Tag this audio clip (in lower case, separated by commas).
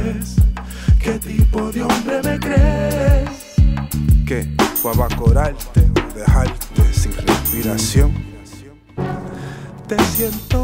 music